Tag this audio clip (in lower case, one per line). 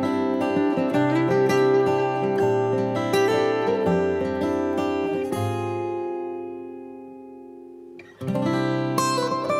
music